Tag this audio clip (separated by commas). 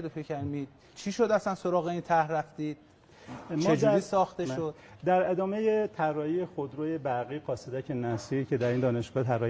Speech